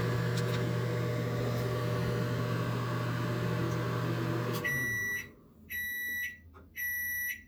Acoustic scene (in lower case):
kitchen